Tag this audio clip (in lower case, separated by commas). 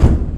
door, home sounds